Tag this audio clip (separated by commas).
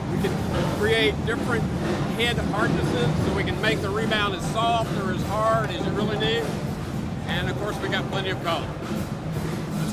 Speech, Music, Percussion